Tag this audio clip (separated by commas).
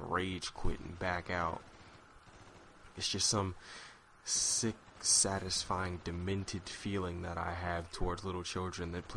Speech